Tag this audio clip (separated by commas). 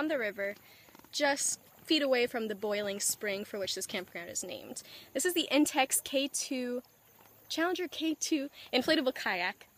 Speech